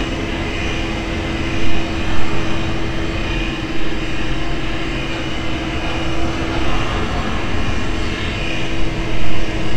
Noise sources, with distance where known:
unidentified impact machinery, far
unidentified powered saw

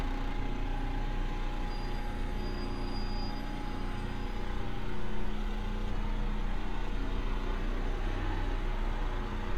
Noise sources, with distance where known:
engine of unclear size, near

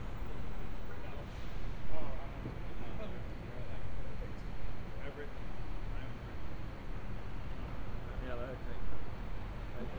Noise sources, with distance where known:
background noise

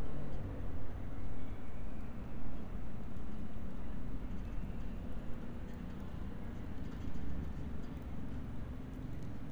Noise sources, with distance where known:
background noise

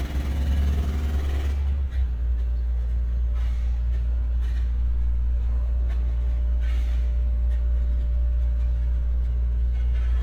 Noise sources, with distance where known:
jackhammer, near

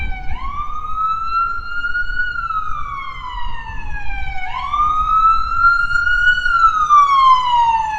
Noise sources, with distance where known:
siren, near

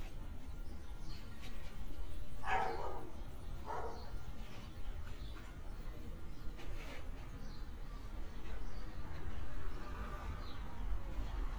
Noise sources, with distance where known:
dog barking or whining

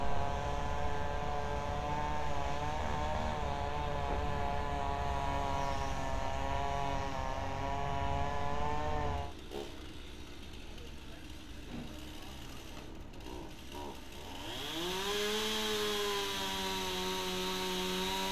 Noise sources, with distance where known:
chainsaw, near

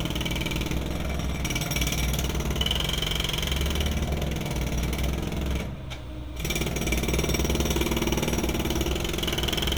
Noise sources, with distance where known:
jackhammer

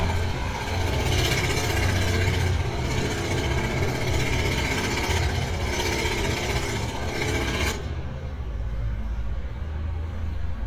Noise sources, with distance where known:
jackhammer, near

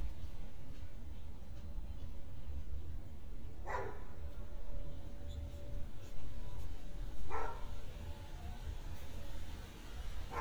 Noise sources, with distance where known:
dog barking or whining, near

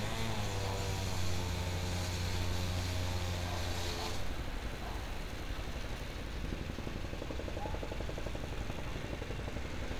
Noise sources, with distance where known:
unidentified powered saw

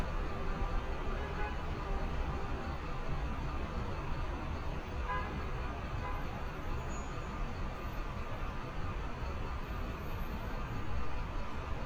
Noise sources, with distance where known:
large-sounding engine, near
car horn

